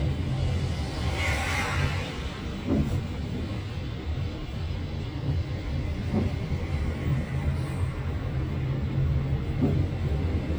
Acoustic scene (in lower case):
car